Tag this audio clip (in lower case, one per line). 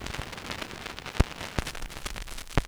crackle